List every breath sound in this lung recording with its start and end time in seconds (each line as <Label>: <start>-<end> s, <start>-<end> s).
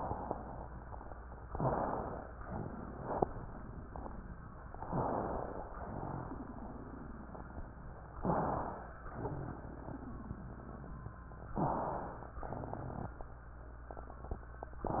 Inhalation: 1.45-2.30 s, 4.72-5.65 s, 8.16-8.97 s, 11.57-12.36 s
Exhalation: 2.42-3.27 s, 5.85-7.30 s, 9.09-11.45 s, 12.38-13.29 s
Wheeze: 1.45-2.00 s, 4.84-5.38 s, 11.53-11.81 s
Crackles: 2.40-4.60 s, 5.83-8.02 s, 9.07-11.43 s, 12.56-13.16 s